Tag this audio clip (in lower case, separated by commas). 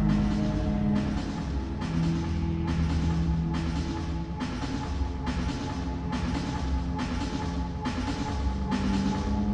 music